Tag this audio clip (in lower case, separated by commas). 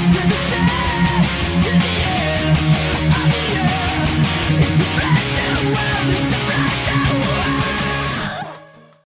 music, plucked string instrument, musical instrument, strum, acoustic guitar, guitar